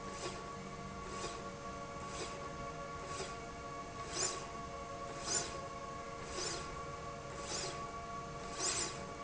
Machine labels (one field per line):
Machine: slide rail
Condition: normal